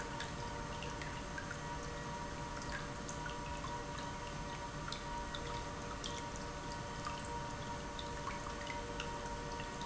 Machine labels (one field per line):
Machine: pump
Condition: normal